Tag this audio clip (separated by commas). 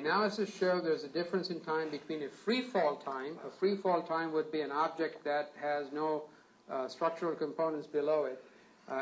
inside a small room, Speech